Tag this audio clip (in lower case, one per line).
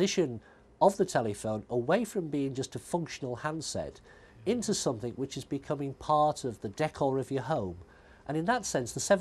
speech